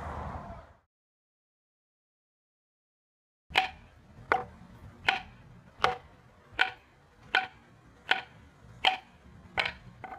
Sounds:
music

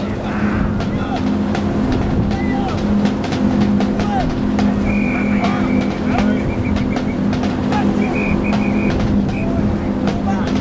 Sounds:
speech, music

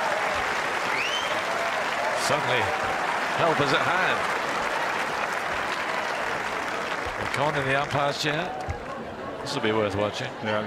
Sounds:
playing tennis

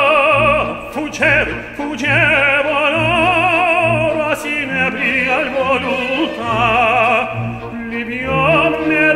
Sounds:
music

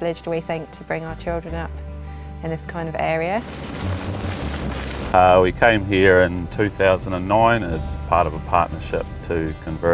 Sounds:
speech, music

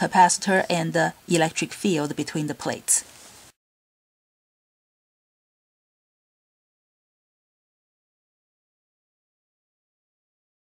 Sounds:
speech

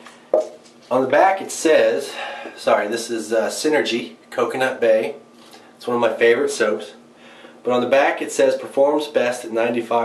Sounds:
speech

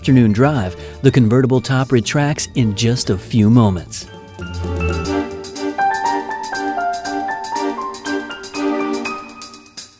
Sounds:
music, speech, vibraphone

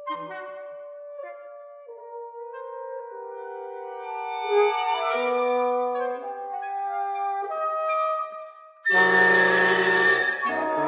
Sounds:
clarinet, music, musical instrument, orchestra, wind instrument

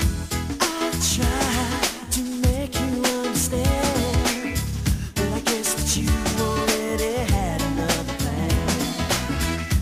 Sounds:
music

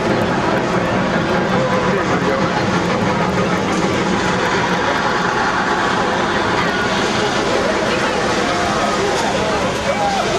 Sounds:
speech

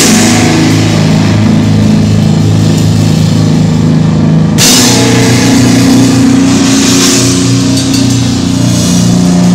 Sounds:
music

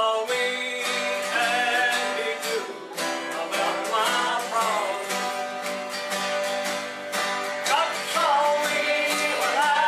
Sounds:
music, male singing

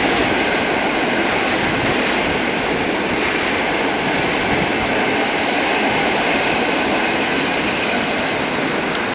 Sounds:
vehicle, train, train wagon

